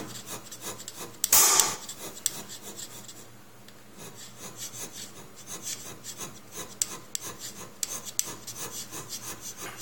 Pressurized air releasing once during scrapping on a metal surface